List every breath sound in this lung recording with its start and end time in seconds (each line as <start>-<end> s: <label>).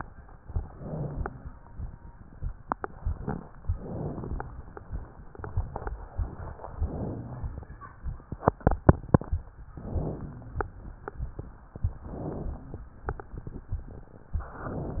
0.46-1.44 s: inhalation
3.72-4.71 s: inhalation
6.72-7.71 s: inhalation
9.70-10.68 s: inhalation
11.99-12.98 s: inhalation